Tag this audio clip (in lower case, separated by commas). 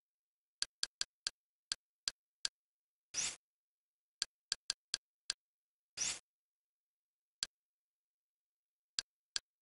tick